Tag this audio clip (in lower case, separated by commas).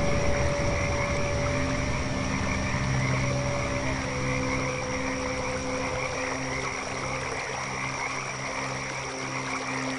frog, croak